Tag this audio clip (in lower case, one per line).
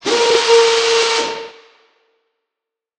mechanisms